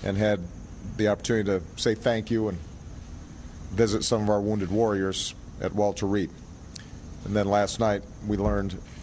An adult male speaks somberly